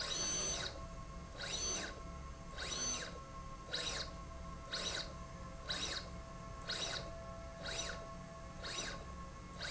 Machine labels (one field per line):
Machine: slide rail